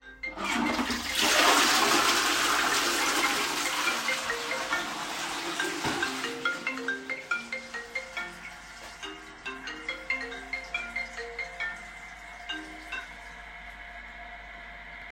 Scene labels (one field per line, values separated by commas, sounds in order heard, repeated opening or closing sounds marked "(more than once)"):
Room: lavatory, hallway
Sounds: phone ringing, toilet flushing